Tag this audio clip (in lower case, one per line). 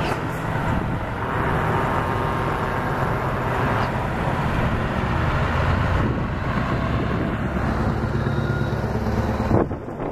vehicle
truck